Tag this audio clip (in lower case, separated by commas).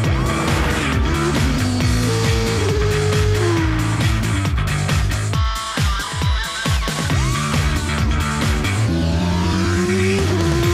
engine, accelerating, car, music, vehicle, medium engine (mid frequency)